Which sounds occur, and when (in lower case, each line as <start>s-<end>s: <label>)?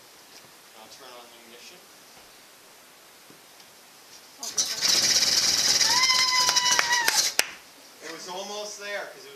0.0s-9.3s: mechanisms
0.2s-0.4s: walk
0.6s-9.3s: conversation
0.7s-1.8s: man speaking
2.1s-2.3s: tap
3.2s-3.4s: tap
3.5s-3.6s: tick
4.0s-4.3s: walk
4.3s-4.7s: woman speaking
4.4s-7.5s: engine starting
4.4s-7.4s: motorcycle
5.8s-7.3s: shout
6.1s-6.3s: clapping
6.4s-6.5s: clapping
6.7s-6.9s: clapping
7.0s-7.1s: clapping
7.3s-7.5s: clapping
7.9s-9.3s: man speaking
8.0s-8.2s: tick